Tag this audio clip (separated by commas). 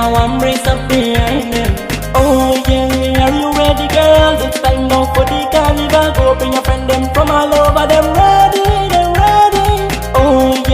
Music